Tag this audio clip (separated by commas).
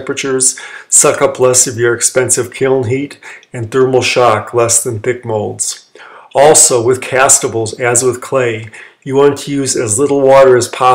Speech